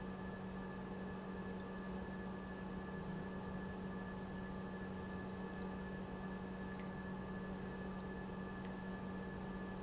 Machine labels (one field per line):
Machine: pump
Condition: normal